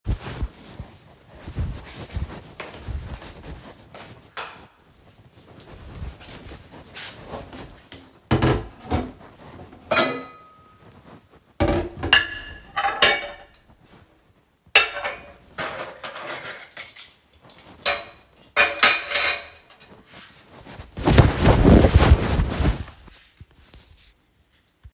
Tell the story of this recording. I placed the phone in my pocket I walked towards the kitchen I switch the light on and put the cultery in the sinck and stopped the recording